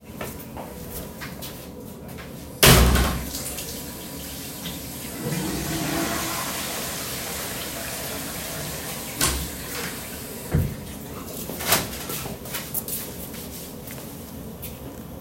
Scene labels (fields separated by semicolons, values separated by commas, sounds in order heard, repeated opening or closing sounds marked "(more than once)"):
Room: lavatory; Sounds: door (more than once), running water, toilet flushing, footsteps